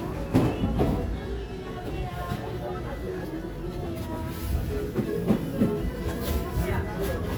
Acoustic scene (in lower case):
crowded indoor space